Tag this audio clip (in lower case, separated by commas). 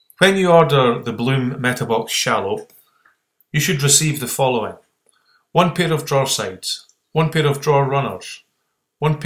speech